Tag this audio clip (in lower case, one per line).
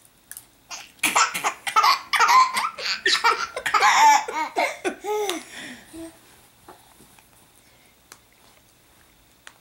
laughter